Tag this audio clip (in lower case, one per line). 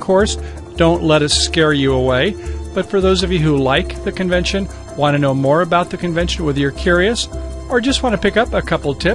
speech
music